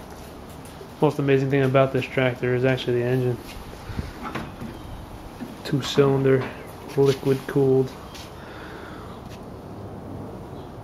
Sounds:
Speech

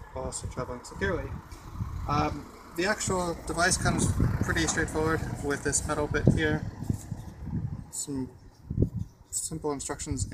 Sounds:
Speech

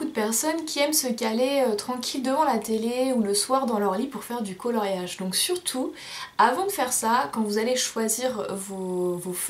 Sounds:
Speech

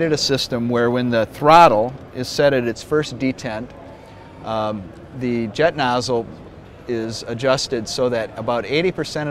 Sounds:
Speech

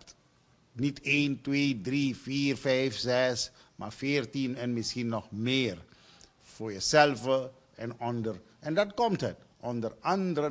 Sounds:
Speech

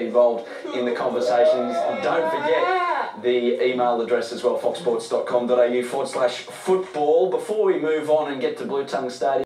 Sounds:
Speech

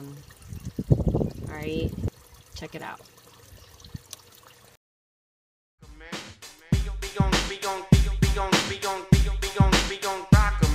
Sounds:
Speech, Music

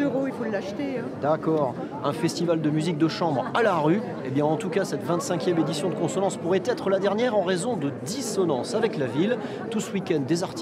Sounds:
Speech

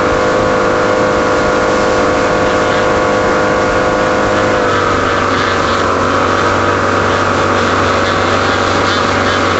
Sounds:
Motorboat, Vehicle, Water vehicle

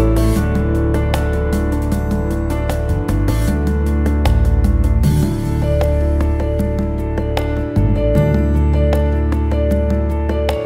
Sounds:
New-age music

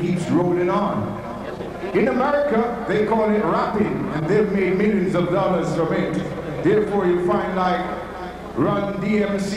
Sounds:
Speech

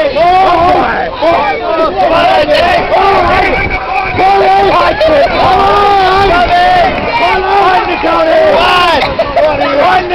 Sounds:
Speech

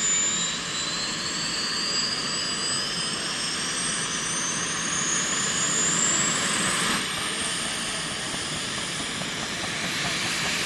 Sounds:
Helicopter, Vehicle

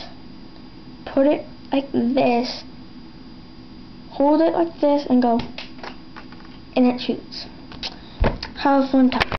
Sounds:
Speech

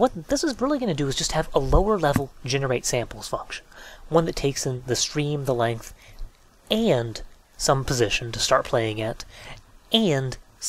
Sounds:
Narration

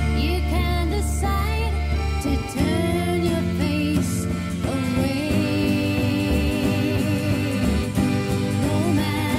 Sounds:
Country, Music

